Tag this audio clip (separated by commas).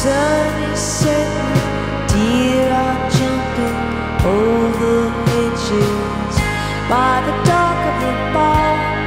Music